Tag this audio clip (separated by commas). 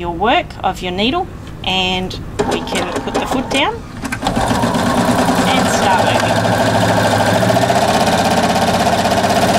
Speech, Sewing machine